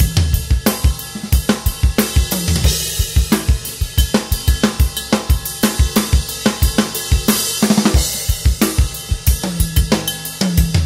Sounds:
Snare drum, Drum kit, Rimshot, Bass drum, Percussion, Drum

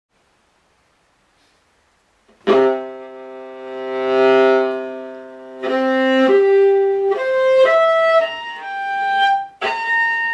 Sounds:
fiddle, Bowed string instrument

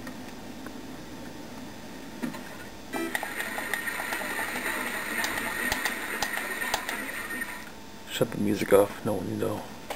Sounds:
Speech

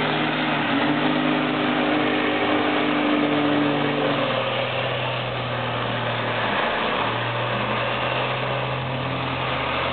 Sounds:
Truck, Vehicle

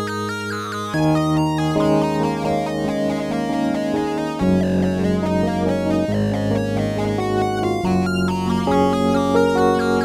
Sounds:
Synthesizer, Musical instrument, Piano, Music, Electric piano, Keyboard (musical)

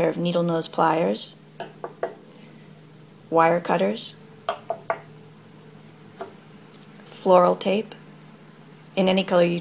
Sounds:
Speech

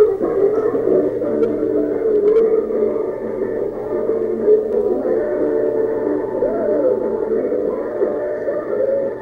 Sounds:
Music, Blues

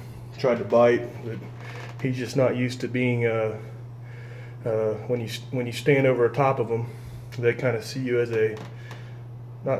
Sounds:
Speech

